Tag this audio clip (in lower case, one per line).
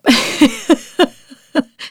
laughter
human voice
giggle